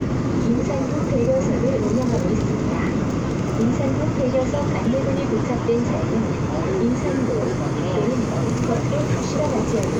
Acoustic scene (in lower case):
subway train